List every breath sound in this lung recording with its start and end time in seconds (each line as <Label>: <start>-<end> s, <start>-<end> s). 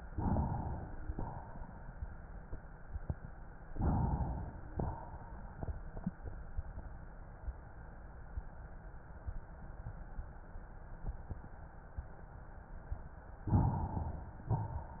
Inhalation: 0.00-1.07 s, 3.67-4.66 s, 13.48-14.45 s
Exhalation: 1.06-2.26 s, 4.67-5.89 s